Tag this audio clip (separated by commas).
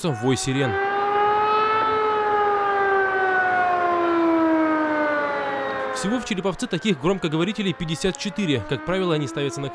civil defense siren